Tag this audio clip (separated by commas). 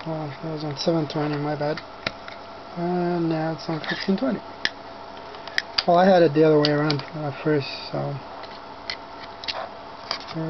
Speech